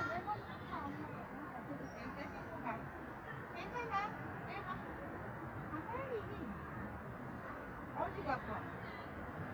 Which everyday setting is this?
residential area